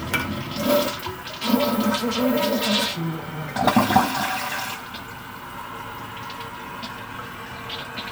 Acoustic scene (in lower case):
restroom